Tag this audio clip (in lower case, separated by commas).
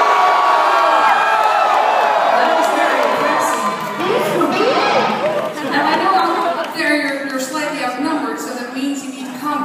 crowd, speech